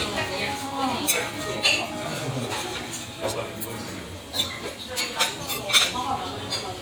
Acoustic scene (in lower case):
restaurant